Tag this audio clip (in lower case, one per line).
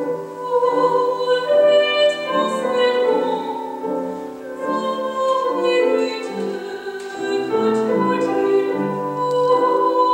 music